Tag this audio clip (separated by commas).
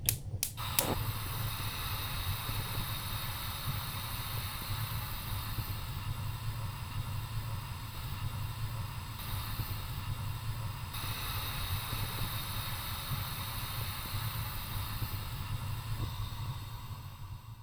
Fire